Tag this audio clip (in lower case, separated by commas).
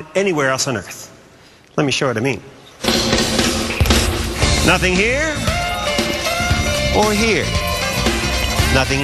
speech, music